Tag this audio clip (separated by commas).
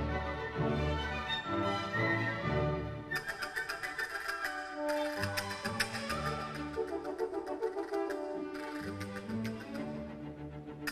playing castanets